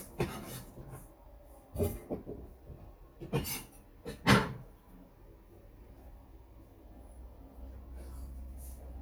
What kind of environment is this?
kitchen